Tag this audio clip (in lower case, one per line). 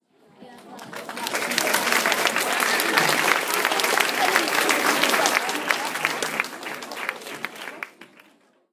human group actions
applause